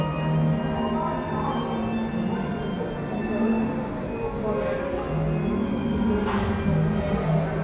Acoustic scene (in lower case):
cafe